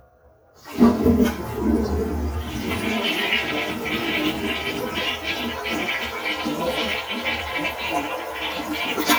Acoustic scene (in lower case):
restroom